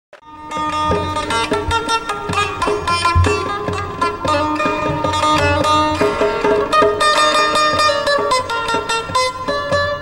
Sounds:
Musical instrument, Plucked string instrument, Music, Zither

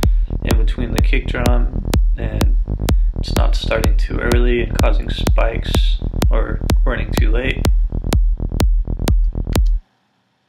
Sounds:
Music, Speech

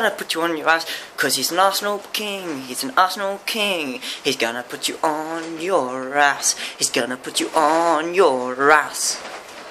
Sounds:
Speech

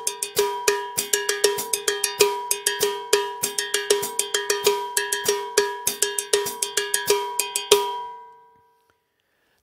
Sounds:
Cowbell

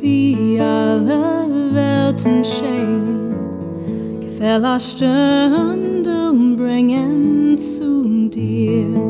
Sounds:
Music, Lullaby

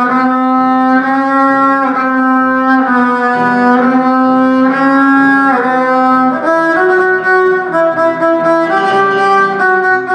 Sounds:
fiddle, Musical instrument, Music

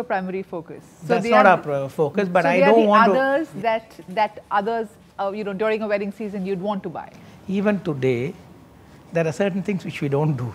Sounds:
Speech

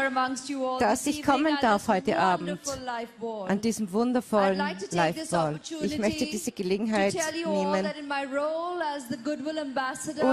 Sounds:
woman speaking, Speech, Narration

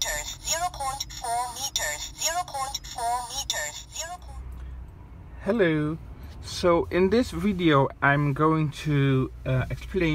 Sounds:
reversing beeps

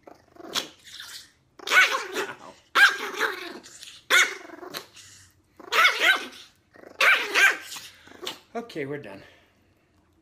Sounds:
dog growling

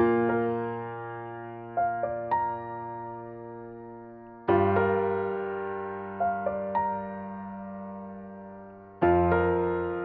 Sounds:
Music

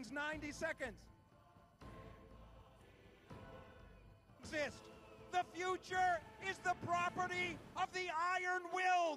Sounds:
Music, Speech

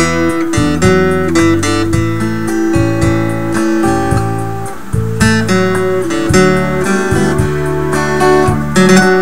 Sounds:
Music, Tender music

